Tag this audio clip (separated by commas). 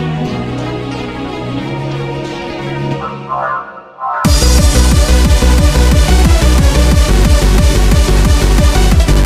Music, Techno, Electronic music